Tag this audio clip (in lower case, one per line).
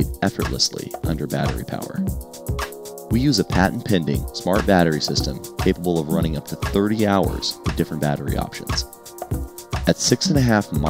speech
music